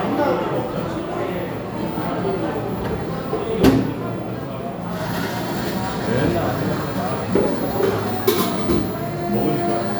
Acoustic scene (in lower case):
cafe